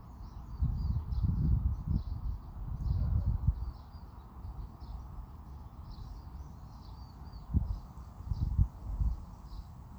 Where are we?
in a park